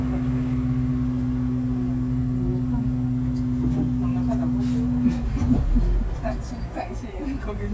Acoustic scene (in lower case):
bus